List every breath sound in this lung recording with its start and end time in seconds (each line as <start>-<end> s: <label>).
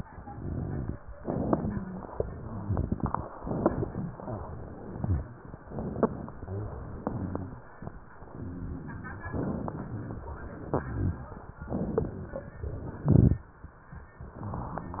0.22-1.00 s: exhalation
0.22-1.00 s: crackles
1.19-1.80 s: inhalation
1.19-1.80 s: crackles
1.57-2.03 s: rhonchi
2.61-3.33 s: exhalation
2.61-3.33 s: crackles
3.43-4.11 s: inhalation
3.43-4.11 s: crackles
4.22-5.27 s: exhalation
4.76-5.27 s: crackles
5.65-6.37 s: inhalation
5.65-6.37 s: crackles
6.65-7.55 s: exhalation
6.98-7.55 s: crackles
9.33-10.22 s: inhalation
9.33-10.22 s: crackles
10.60-11.23 s: exhalation
10.60-11.23 s: crackles
11.68-12.56 s: inhalation
11.68-12.56 s: crackles
12.69-13.49 s: exhalation
12.99-13.49 s: crackles